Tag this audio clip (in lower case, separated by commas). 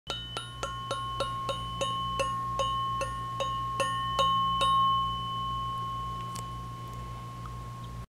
mallet percussion, glockenspiel, marimba